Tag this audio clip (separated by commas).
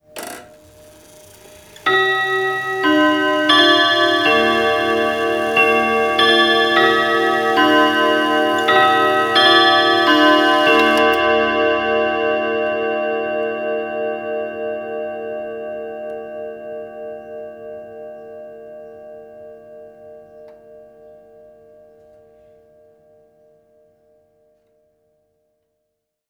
Mechanisms, Clock